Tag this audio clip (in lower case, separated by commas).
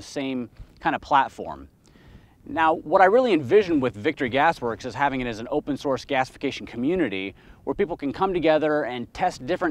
speech